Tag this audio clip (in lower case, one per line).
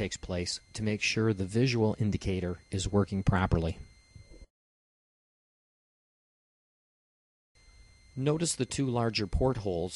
speech
inside a small room